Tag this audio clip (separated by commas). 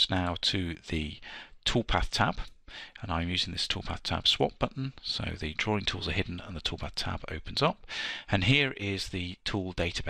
Speech